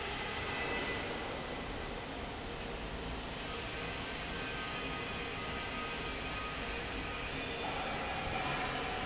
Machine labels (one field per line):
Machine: fan